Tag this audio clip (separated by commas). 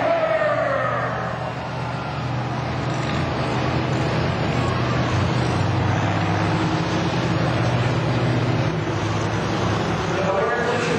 Truck, Vehicle